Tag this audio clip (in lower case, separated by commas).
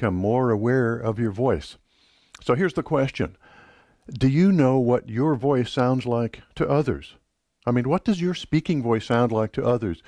speech